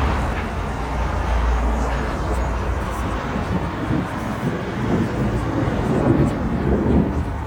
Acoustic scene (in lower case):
street